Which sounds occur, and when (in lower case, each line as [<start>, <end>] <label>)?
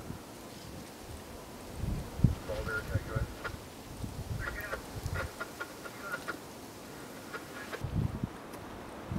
[0.01, 9.15] wind
[2.48, 3.50] male speech
[4.34, 4.74] male speech
[4.94, 6.40] generic impact sounds